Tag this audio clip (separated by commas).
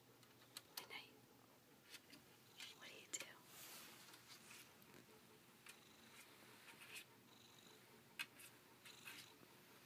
Speech